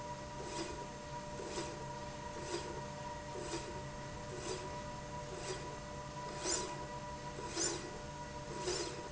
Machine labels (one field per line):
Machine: slide rail